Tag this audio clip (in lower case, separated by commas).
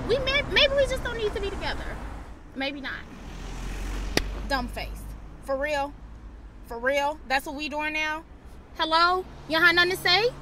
speech